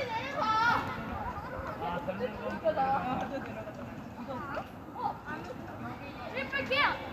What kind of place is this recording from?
residential area